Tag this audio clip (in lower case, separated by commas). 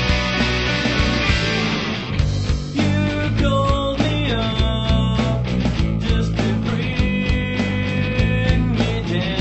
music